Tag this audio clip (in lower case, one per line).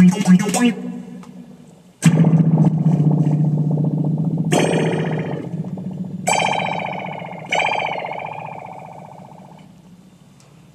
musical instrument
music
guitar
plucked string instrument
effects unit